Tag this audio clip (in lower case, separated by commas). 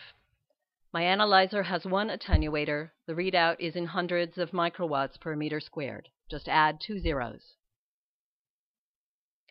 speech